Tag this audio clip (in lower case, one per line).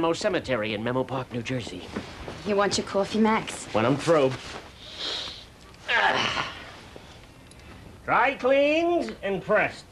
speech